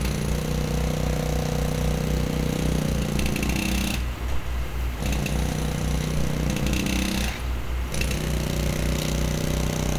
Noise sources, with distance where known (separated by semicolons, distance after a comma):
unidentified impact machinery, near